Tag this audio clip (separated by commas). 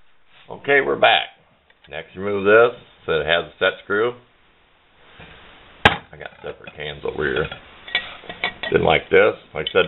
inside a small room, Speech